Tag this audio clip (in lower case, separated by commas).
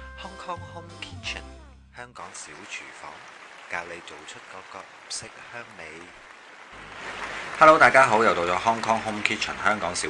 speech, music